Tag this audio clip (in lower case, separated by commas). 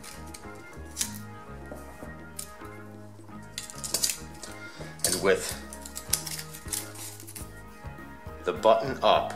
inside a small room, music, speech